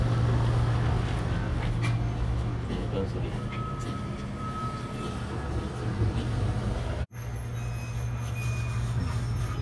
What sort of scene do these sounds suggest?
residential area